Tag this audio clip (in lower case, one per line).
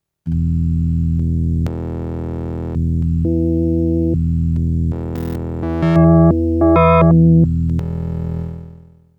keyboard (musical)
music
musical instrument